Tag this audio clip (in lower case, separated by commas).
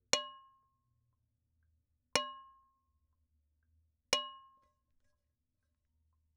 dishes, pots and pans, home sounds